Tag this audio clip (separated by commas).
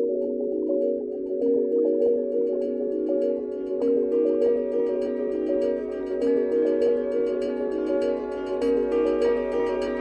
Singing bowl, Music